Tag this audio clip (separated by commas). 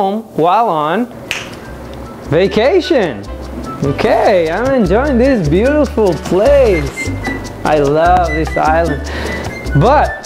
Speech, Music